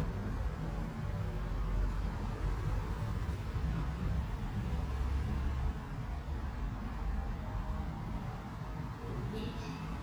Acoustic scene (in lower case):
elevator